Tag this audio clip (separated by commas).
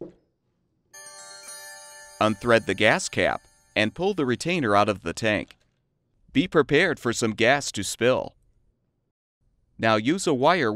Speech